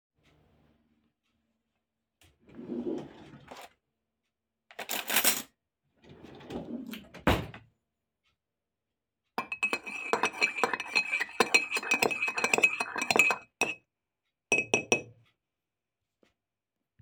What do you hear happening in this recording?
I opened the drawer, took a spoon out of it and closed the drawer. Then I stirred my tea with the spoon.